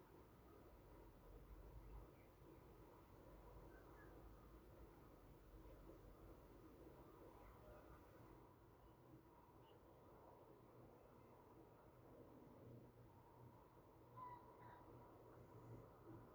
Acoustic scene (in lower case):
park